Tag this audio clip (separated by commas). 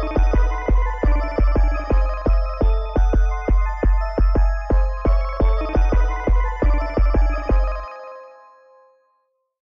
Music